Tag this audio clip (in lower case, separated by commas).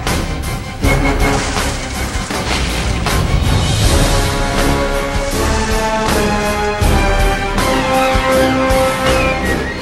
music